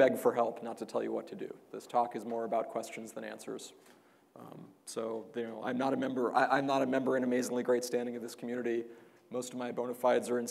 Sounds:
Speech

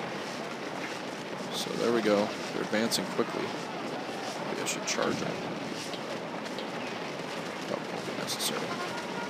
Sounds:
Speech, Music

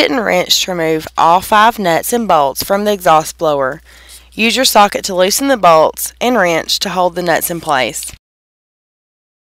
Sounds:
inside a small room, Speech

